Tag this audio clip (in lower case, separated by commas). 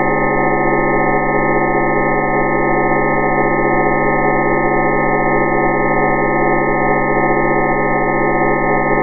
music